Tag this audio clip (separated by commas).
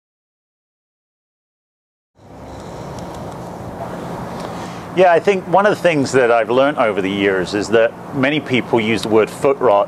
Speech